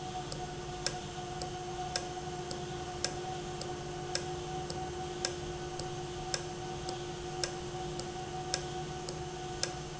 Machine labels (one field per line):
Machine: valve